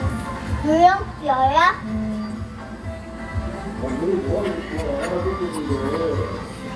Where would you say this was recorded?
in a restaurant